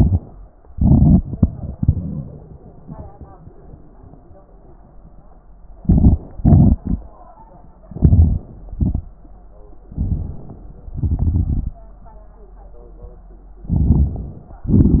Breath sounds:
0.00-0.16 s: inhalation
0.70-2.65 s: exhalation
1.74-2.65 s: wheeze
5.82-6.22 s: inhalation
6.39-7.03 s: exhalation
7.88-8.42 s: crackles
7.92-8.43 s: inhalation
8.71-9.05 s: exhalation
9.93-10.33 s: crackles
9.96-10.33 s: inhalation
10.97-11.80 s: crackles
10.99-11.80 s: exhalation
13.73-14.38 s: inhalation
13.74-14.41 s: crackles
14.71-15.00 s: exhalation

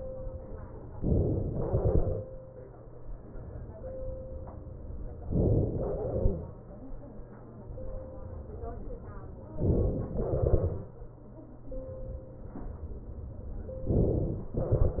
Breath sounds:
0.99-1.58 s: inhalation
1.58-3.19 s: exhalation
5.30-5.98 s: inhalation
9.57-10.16 s: inhalation
10.16-12.27 s: exhalation
13.88-14.60 s: inhalation

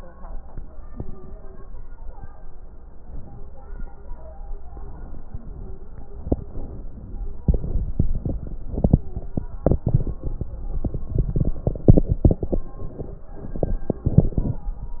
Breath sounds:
6.51-7.40 s: inhalation

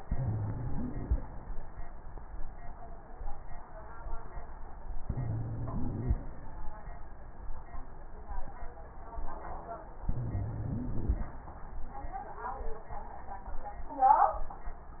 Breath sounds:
0.00-1.19 s: inhalation
0.00-1.19 s: wheeze
5.02-6.21 s: inhalation
5.02-6.21 s: wheeze
5.04-6.23 s: inhalation
10.07-11.27 s: wheeze

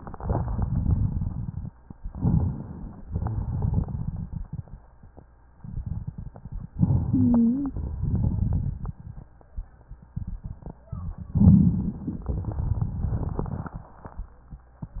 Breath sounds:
0.00-1.67 s: crackles
2.01-3.06 s: inhalation
2.01-3.06 s: crackles
3.09-4.84 s: exhalation
3.09-4.84 s: crackles
6.81-7.97 s: inhalation
7.04-7.82 s: wheeze
7.99-9.43 s: exhalation
7.99-9.43 s: crackles
11.31-12.31 s: inhalation
11.31-12.31 s: crackles
12.35-14.12 s: exhalation
12.35-14.12 s: crackles

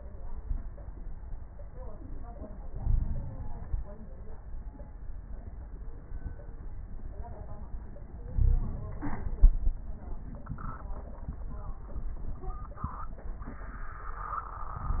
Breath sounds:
2.67-3.96 s: inhalation
2.79-3.26 s: wheeze
8.30-8.79 s: wheeze
8.30-9.73 s: inhalation

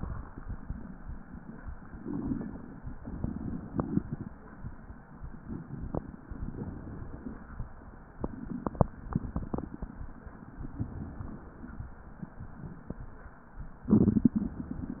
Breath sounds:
1.90-2.93 s: inhalation
2.96-4.29 s: exhalation
2.96-4.29 s: crackles
5.17-6.25 s: inhalation
5.17-6.25 s: crackles
6.28-7.68 s: exhalation

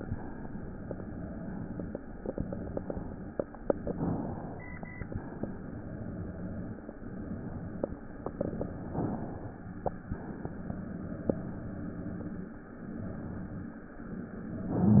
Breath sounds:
3.65-4.64 s: inhalation
4.64-5.52 s: exhalation
8.90-10.16 s: inhalation
10.13-11.34 s: exhalation
14.63-15.00 s: inhalation

